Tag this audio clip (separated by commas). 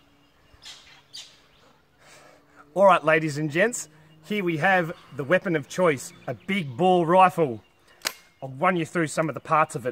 Chirp, Speech, Bird vocalization, outside, rural or natural